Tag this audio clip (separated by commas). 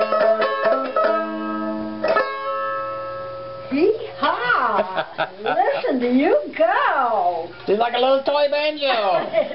Banjo, inside a small room, Speech, Musical instrument